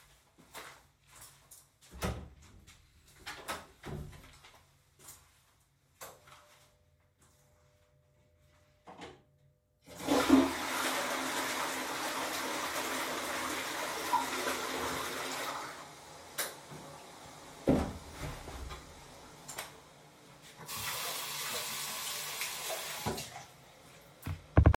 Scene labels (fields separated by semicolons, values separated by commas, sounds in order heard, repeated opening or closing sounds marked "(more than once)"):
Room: bathroom; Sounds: footsteps, door (more than once), light switch, toilet flushing, running water